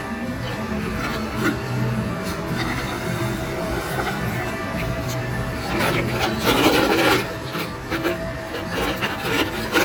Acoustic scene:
cafe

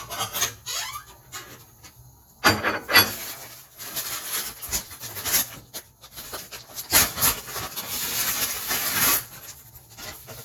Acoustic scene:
kitchen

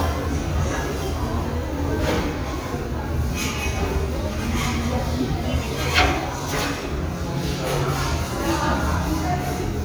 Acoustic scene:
restaurant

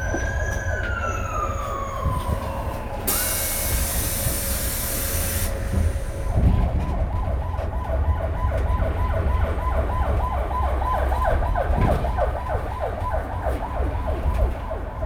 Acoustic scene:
bus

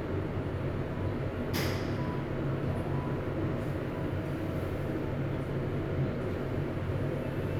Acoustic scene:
elevator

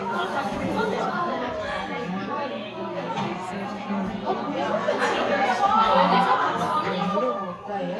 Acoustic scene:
crowded indoor space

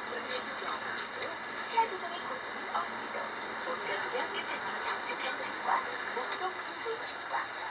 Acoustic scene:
bus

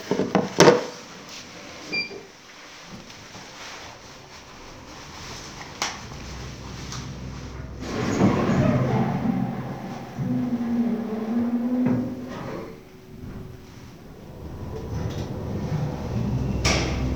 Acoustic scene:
elevator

